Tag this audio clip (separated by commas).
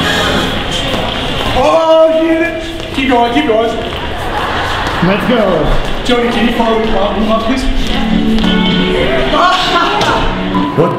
Speech, Music, inside a large room or hall